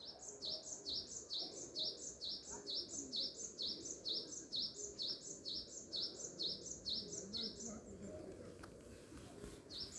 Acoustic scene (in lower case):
park